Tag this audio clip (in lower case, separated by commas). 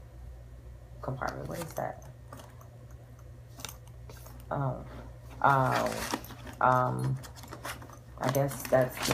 inside a small room, speech